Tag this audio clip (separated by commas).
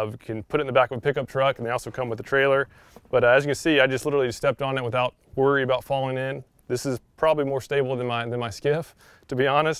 Speech